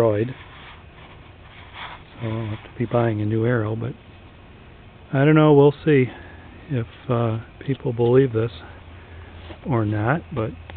A man talking with some plastic shuffling in the background